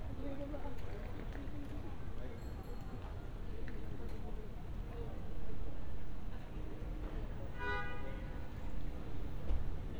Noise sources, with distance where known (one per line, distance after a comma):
car horn, near
person or small group talking